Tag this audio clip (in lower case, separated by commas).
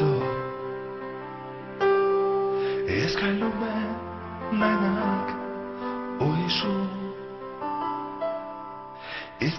music